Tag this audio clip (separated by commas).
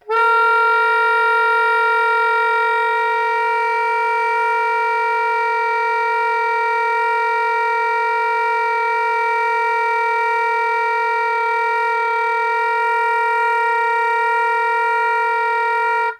Musical instrument, woodwind instrument, Music